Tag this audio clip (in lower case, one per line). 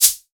percussion
rattle (instrument)
musical instrument
music